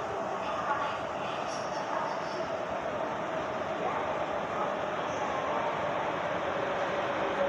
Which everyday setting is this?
subway station